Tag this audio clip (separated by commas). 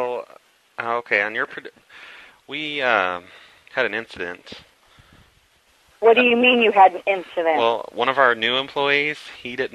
Speech